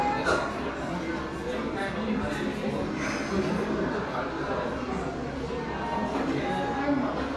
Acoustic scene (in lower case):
cafe